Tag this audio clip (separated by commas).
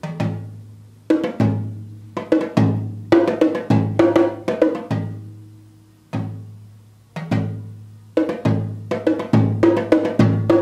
Wood block, Percussion